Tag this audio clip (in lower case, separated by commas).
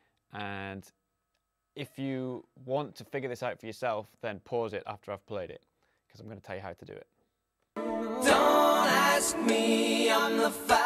music, speech